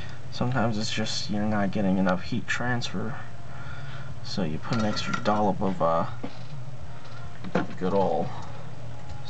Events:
[0.00, 0.17] generic impact sounds
[0.00, 9.25] mechanisms
[0.36, 3.25] man speaking
[1.99, 2.15] generic impact sounds
[3.33, 4.13] breathing
[3.41, 4.18] singing
[4.22, 6.11] man speaking
[4.69, 5.30] generic impact sounds
[6.11, 6.29] generic impact sounds
[6.67, 9.25] singing
[7.37, 7.72] generic impact sounds
[7.80, 8.32] man speaking
[8.31, 8.55] generic impact sounds
[9.00, 9.23] generic impact sounds

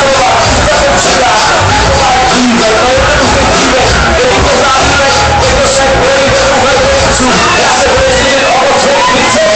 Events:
[0.00, 7.19] male singing
[0.00, 9.55] music
[7.45, 9.55] male singing

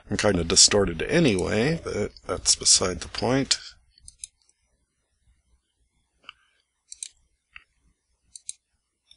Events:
[0.00, 9.15] background noise
[2.26, 3.73] man speaking
[8.31, 8.51] clicking
[9.06, 9.14] generic impact sounds

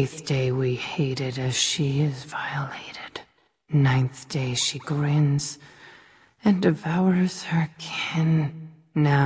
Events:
[0.00, 9.25] background noise
[0.01, 3.23] woman speaking
[3.29, 3.63] breathing
[3.66, 5.58] woman speaking
[5.60, 6.35] breathing
[6.36, 8.53] woman speaking
[8.52, 8.91] breathing

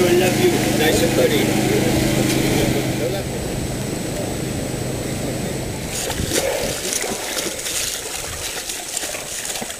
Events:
[0.00, 1.42] man speaking
[0.00, 9.75] motor vehicle (road)
[0.00, 9.75] wind
[0.01, 3.25] vroom
[2.20, 3.21] man speaking
[5.84, 9.75] splatter

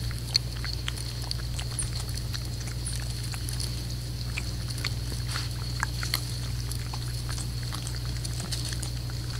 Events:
[0.01, 9.35] paper rustling

